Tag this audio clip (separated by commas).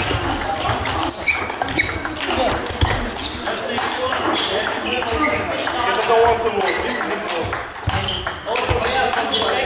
Speech